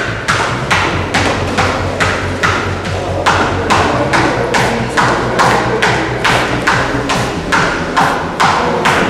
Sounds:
Speech, Music

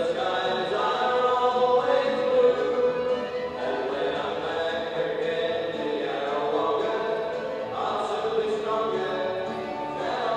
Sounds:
Music

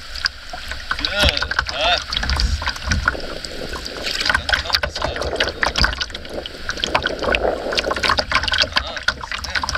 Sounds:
Boat, canoe

